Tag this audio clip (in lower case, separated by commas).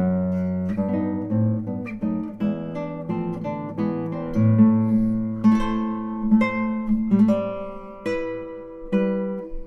pizzicato